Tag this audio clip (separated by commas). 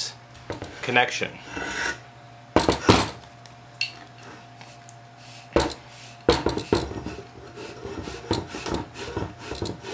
Speech